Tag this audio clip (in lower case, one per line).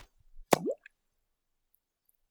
liquid
splatter